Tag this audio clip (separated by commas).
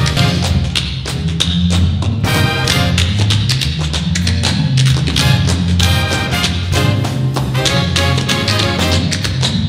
Music, Tap